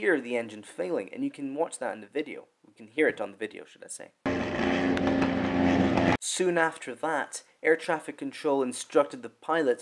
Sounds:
speech, aircraft

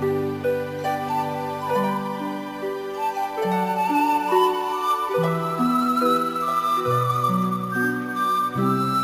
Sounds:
music

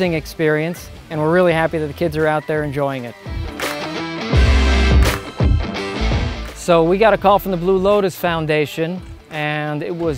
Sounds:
speech, music

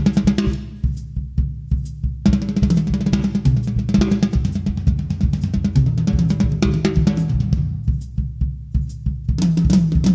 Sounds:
playing bass drum, music, bass drum

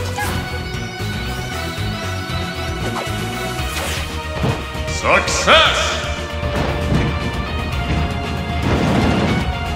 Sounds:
music, speech

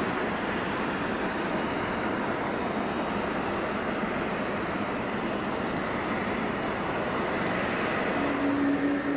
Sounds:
fixed-wing aircraft, vehicle

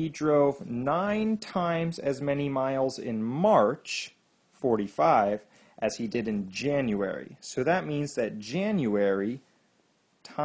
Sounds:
speech, monologue

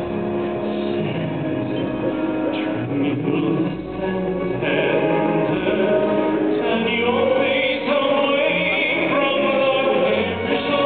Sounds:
music

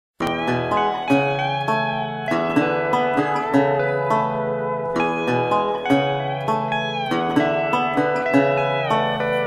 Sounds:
harp, pizzicato

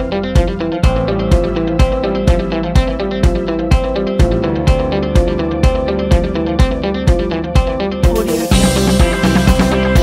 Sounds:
music, background music

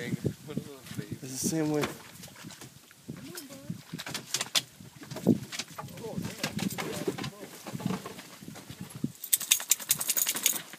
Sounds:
speech

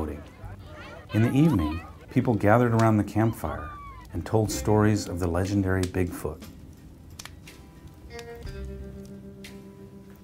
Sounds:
music, speech

